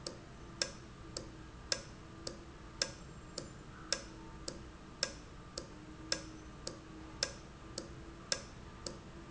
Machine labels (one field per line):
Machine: valve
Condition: normal